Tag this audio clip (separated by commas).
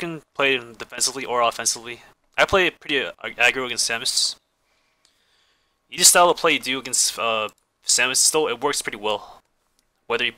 Speech